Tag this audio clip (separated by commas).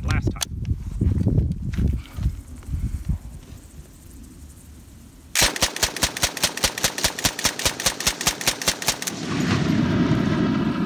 machine gun shooting